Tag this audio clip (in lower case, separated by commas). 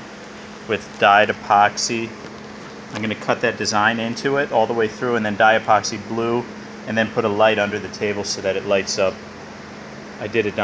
speech